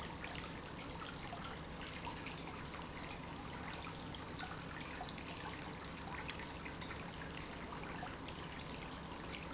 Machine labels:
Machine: pump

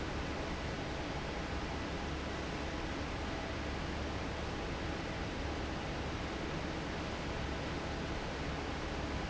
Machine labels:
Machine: fan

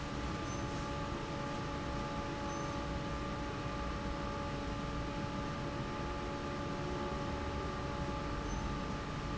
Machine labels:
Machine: fan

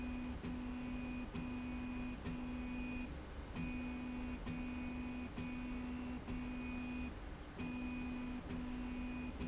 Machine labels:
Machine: slide rail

